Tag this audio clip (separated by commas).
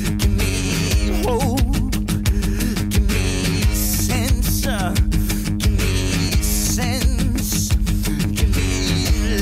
Music